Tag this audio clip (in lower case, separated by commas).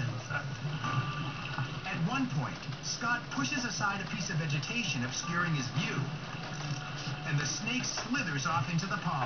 speech